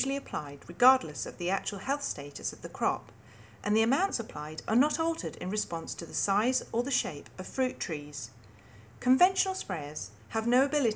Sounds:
Speech

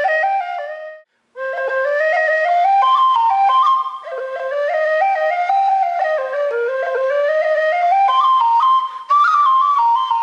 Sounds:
Wind instrument, Flute, Musical instrument

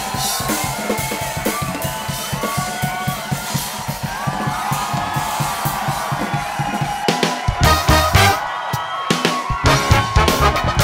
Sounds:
Music

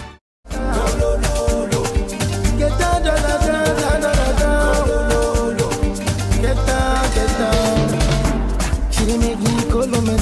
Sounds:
Music

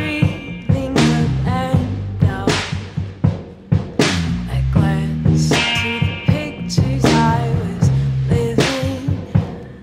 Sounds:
Music, Musical instrument, Drum, Guitar

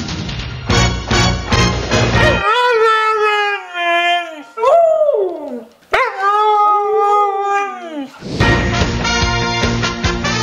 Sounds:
pets, Dog, Animal, Music, Howl, canids

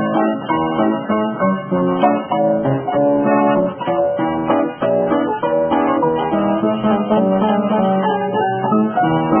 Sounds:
Music

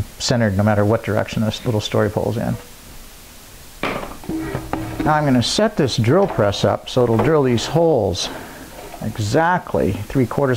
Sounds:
Speech

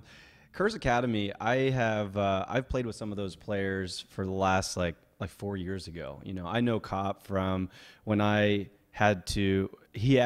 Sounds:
Speech

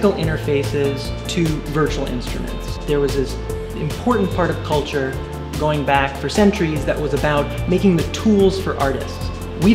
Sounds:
Speech, Harpsichord, Music, Background music

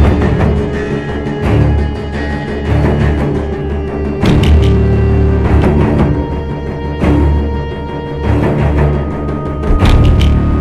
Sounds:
Timpani, Music

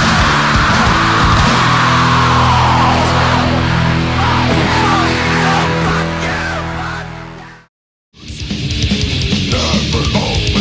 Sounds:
Heavy metal, Music

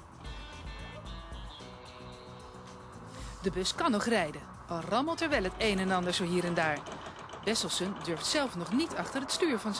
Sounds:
Music, Speech, Vehicle

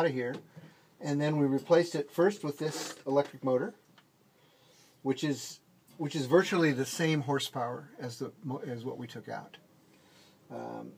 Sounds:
Speech

